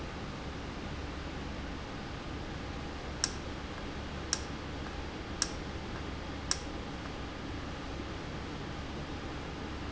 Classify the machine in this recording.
valve